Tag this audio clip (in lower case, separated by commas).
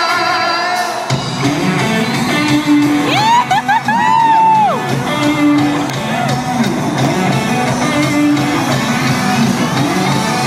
music, funk